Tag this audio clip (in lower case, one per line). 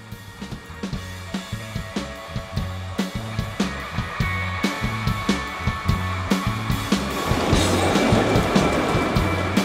speech